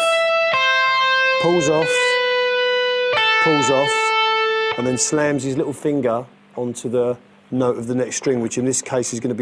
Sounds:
Speech, Music

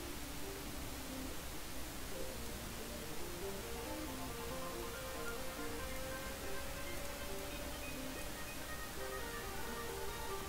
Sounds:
Music

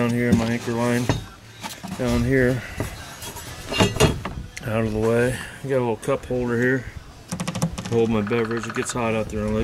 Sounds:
Speech

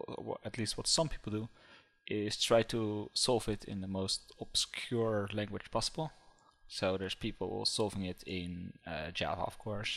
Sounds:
Speech

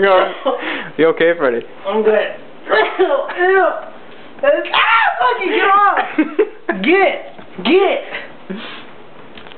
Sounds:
Speech

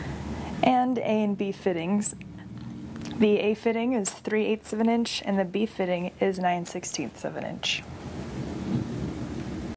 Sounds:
Speech

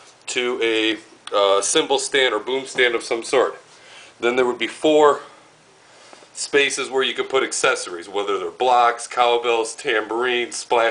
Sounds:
Speech

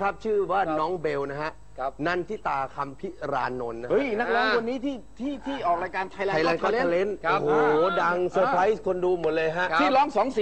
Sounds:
Speech

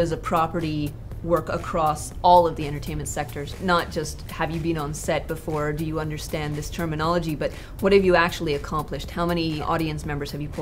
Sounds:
Speech, Music

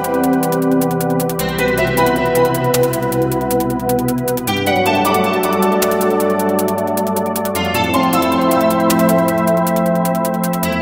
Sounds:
Music

